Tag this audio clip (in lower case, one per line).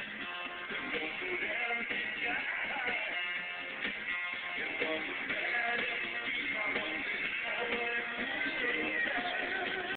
music